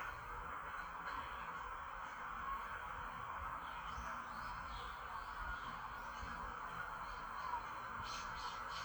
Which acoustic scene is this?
park